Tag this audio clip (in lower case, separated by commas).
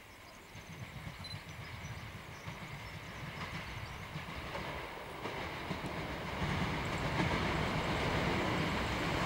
railroad car, vehicle, rail transport, train